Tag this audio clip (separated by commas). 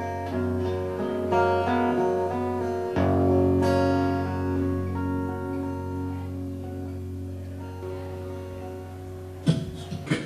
Music, Plucked string instrument, Speech, Strum, Guitar, Musical instrument, Acoustic guitar